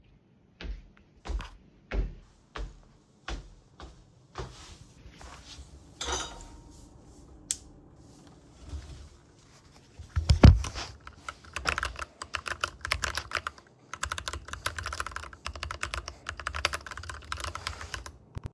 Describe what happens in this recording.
I walked to my desk in the office to start working. Before sitting down, I turned on the light switch. I then typed on the keyboard for a short time.